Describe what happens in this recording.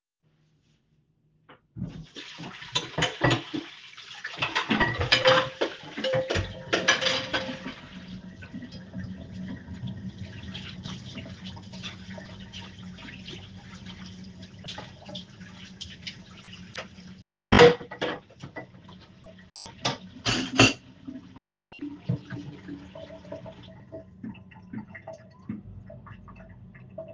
I do the dishes in the kitchen, when I turn the water off the water heater starts working